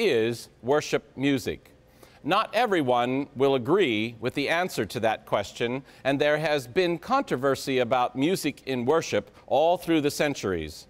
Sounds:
Speech

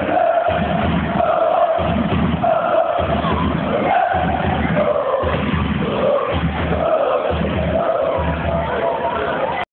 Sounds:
Speech

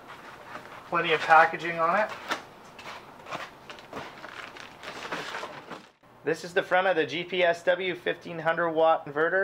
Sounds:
Speech, inside a small room

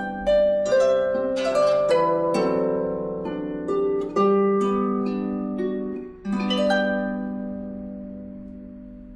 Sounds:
playing harp, Musical instrument, Harp, Music, Plucked string instrument

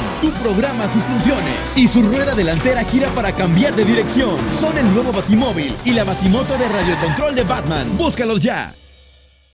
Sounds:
Speech, Music

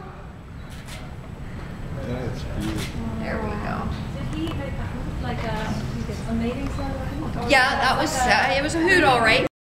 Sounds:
Speech

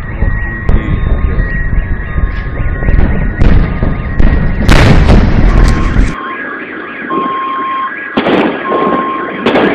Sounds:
Explosion

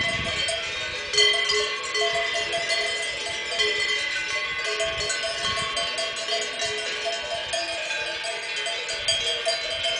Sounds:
cattle

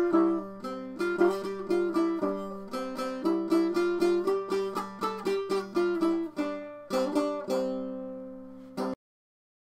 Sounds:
Music, Plucked string instrument, Musical instrument

